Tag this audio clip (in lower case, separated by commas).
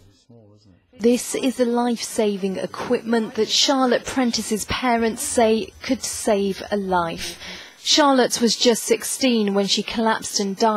television, speech